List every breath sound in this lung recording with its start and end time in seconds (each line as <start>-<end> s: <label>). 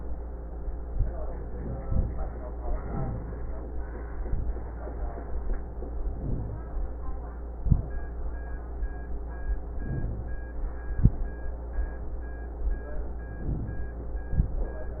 2.66-3.55 s: inhalation
2.88-3.51 s: wheeze
6.00-6.93 s: inhalation
6.17-6.85 s: wheeze
9.66-10.51 s: inhalation
9.89-10.44 s: wheeze
13.38-14.23 s: inhalation
13.59-14.19 s: wheeze